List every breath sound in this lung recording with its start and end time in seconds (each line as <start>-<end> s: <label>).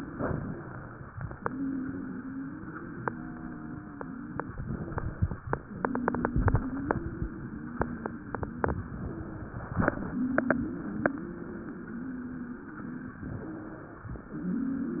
0.00-0.99 s: inhalation
1.35-4.50 s: exhalation
1.35-4.50 s: wheeze
4.55-5.46 s: inhalation
5.84-8.99 s: exhalation
5.84-8.99 s: wheeze
9.03-9.94 s: inhalation
10.13-13.21 s: exhalation
10.13-13.21 s: wheeze
13.21-14.12 s: inhalation